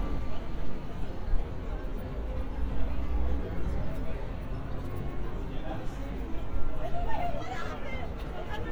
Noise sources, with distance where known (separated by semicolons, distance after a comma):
person or small group talking, near